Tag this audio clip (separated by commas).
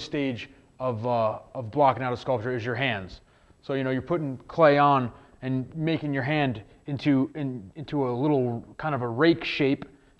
Speech